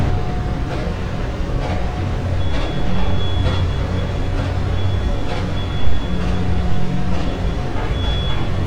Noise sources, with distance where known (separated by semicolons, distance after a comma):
unidentified impact machinery; reverse beeper, near